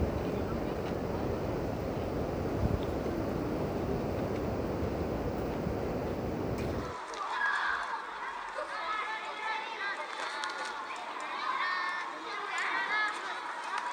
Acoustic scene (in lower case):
park